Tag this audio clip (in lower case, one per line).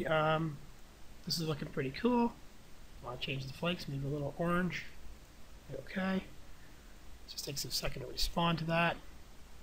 speech